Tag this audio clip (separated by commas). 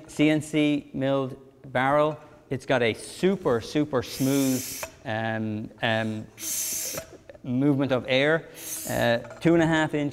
Speech